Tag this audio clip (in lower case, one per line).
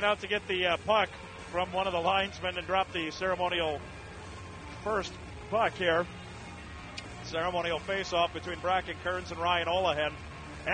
music
speech